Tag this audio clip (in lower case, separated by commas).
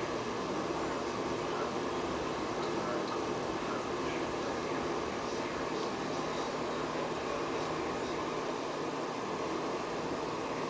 inside a small room, speech